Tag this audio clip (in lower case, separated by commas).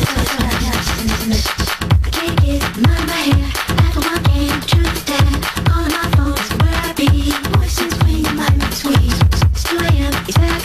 scratching (performance technique), house music, music